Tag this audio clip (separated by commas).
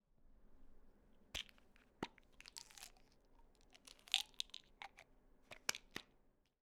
Rattle